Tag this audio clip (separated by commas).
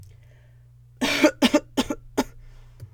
Cough, Respiratory sounds